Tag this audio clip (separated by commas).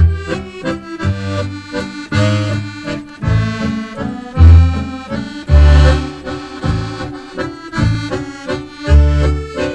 Music